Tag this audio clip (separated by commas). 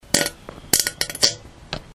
Fart